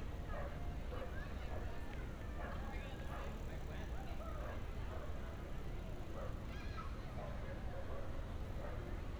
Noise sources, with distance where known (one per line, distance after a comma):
person or small group talking